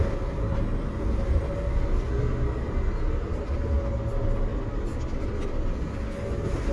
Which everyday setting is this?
bus